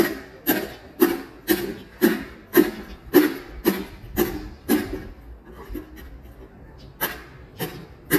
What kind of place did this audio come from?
residential area